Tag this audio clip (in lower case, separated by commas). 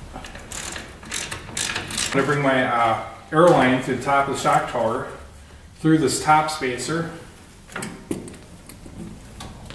speech, car